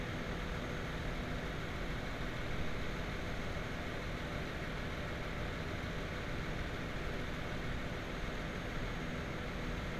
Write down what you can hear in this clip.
engine of unclear size, unidentified impact machinery